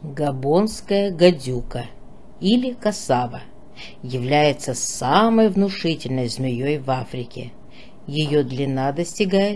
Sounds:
Speech

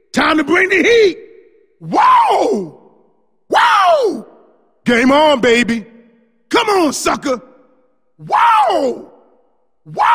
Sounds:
Speech

